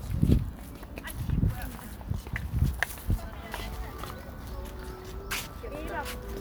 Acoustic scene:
residential area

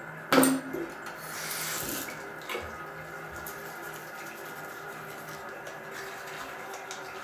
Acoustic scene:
restroom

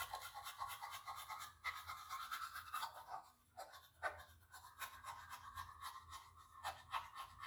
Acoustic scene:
restroom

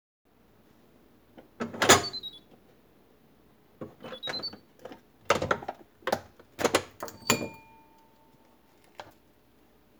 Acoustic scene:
kitchen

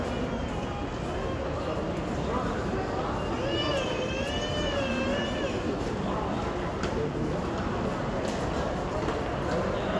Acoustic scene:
crowded indoor space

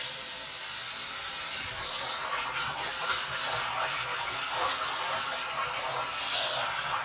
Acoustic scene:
kitchen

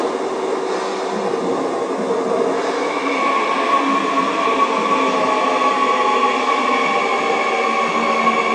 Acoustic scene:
subway station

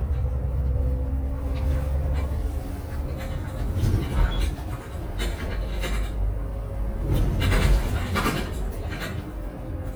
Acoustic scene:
bus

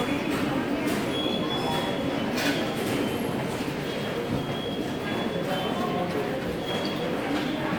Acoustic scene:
subway station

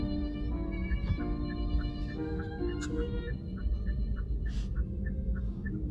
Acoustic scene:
car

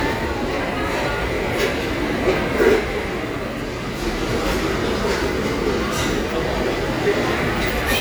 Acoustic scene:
crowded indoor space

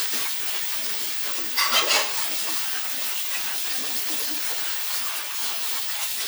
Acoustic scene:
kitchen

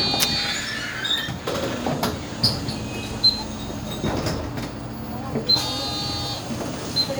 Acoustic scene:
bus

